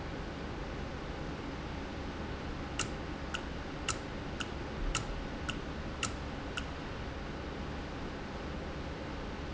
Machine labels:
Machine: valve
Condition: normal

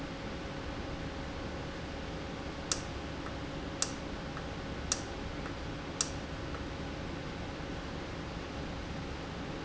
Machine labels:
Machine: valve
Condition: normal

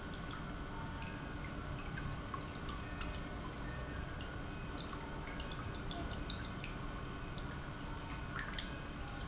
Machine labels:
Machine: pump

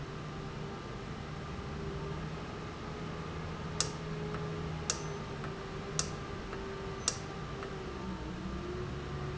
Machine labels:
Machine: valve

